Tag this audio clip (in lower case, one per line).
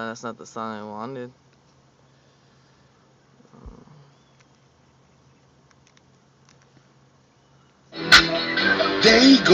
music
speech